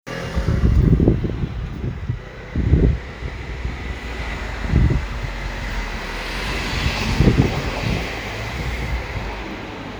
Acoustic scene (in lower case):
residential area